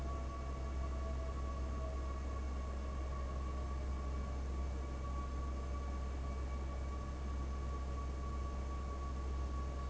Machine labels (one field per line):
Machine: fan